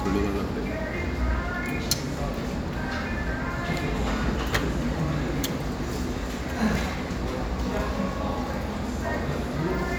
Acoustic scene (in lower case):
cafe